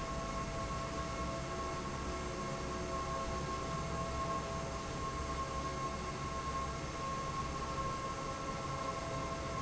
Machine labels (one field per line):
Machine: fan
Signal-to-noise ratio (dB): -6 dB